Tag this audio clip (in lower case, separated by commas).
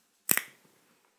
crack, crackle